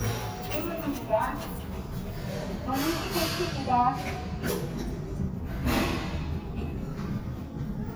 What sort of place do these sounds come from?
elevator